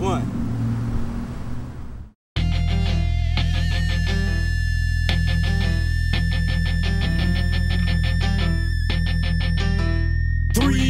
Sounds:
Music, Speech

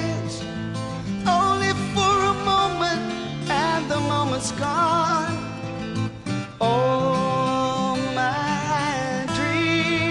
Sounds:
Music

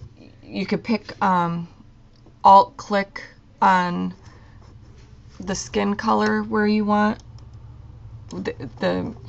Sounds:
Speech, inside a small room

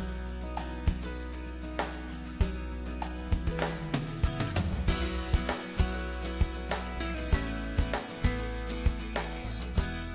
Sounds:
Music

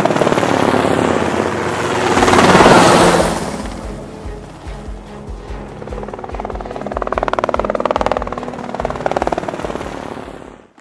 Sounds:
Helicopter, Music

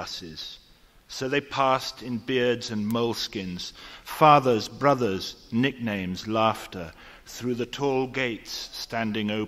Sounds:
Speech

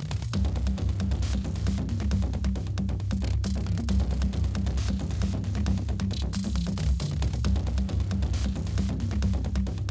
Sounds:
Music

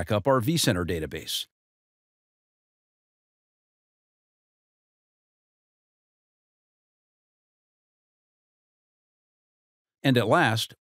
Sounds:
Speech

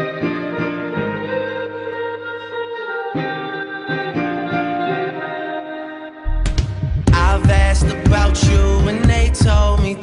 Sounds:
Music

